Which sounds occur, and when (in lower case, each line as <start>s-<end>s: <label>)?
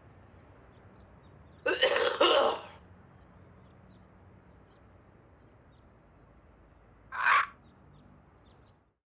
0.0s-9.0s: mechanisms
0.7s-1.6s: bird vocalization
1.6s-2.7s: cough
2.5s-2.8s: bird
2.8s-3.3s: bird vocalization
3.7s-4.0s: bird vocalization
4.7s-4.8s: bird vocalization
5.7s-5.8s: bird vocalization
7.1s-7.6s: bird
7.6s-7.7s: bird vocalization
7.9s-8.0s: bird vocalization
8.5s-8.7s: bird vocalization